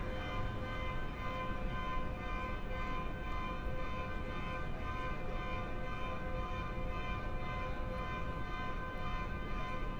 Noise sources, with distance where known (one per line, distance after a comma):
unidentified alert signal, far